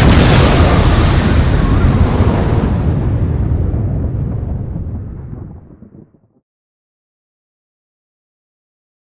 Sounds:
Explosion

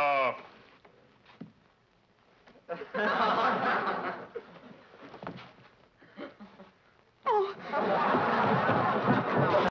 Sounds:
Tap

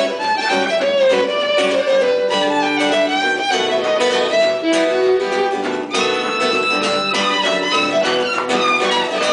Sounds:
Musical instrument, fiddle, Music

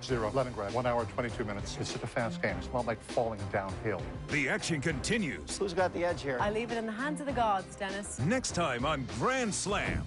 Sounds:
Music, Speech

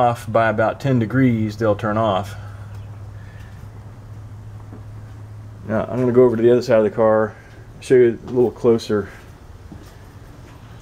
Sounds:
Speech

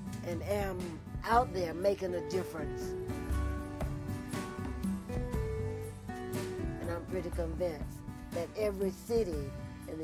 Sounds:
Speech, Music

